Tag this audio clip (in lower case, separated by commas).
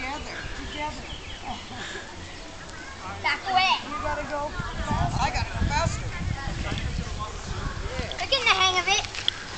bicycle, speech, vehicle